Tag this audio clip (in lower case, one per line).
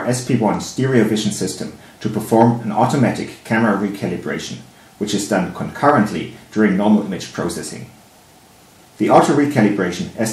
speech